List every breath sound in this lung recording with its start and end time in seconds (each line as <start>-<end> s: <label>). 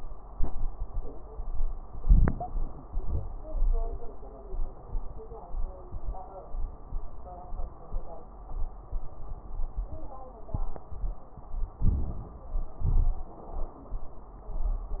1.94-2.87 s: inhalation
1.94-2.87 s: crackles
2.92-3.53 s: exhalation
2.92-3.53 s: crackles
11.78-12.70 s: inhalation
12.82-13.48 s: exhalation